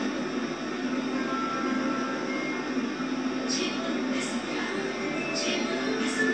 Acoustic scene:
subway train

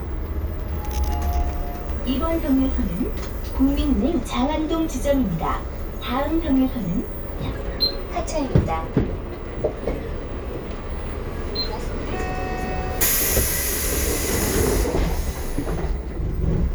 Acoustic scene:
bus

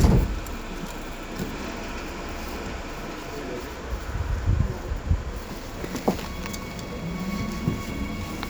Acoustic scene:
subway station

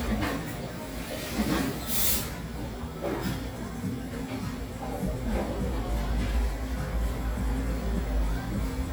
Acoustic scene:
cafe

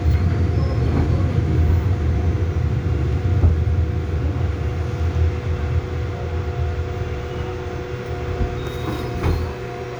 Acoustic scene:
subway train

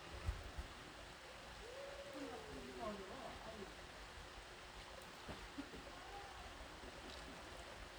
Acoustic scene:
park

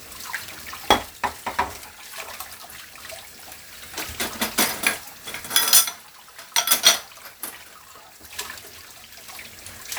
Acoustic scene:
kitchen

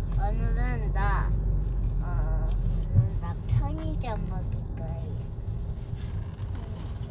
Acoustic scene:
car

